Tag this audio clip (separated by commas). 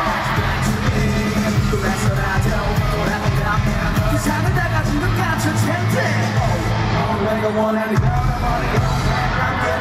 Music